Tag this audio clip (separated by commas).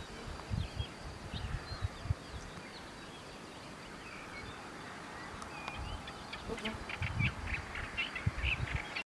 Animal, Bird